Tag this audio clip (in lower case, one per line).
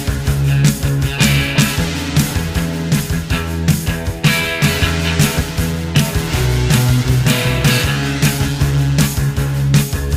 music